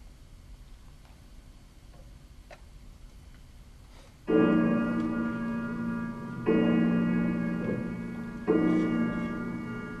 Clock is chiming